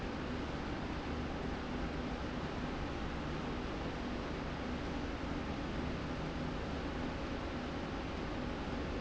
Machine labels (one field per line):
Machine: slide rail